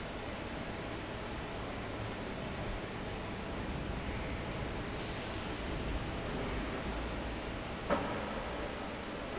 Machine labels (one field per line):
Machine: fan